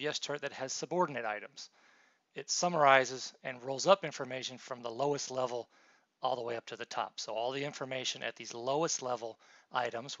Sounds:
speech

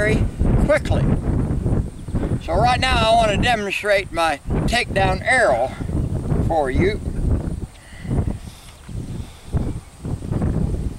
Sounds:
speech

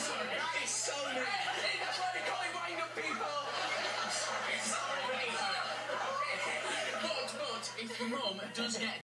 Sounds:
speech

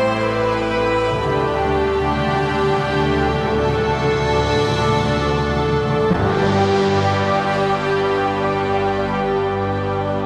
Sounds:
theme music

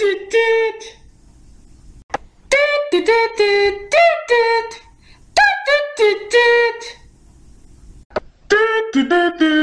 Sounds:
music

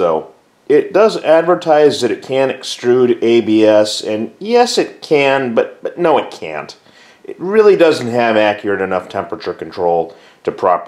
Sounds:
speech

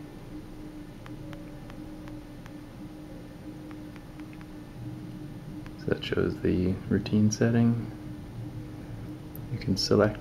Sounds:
speech

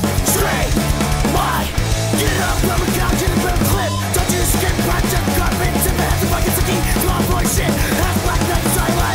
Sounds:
music

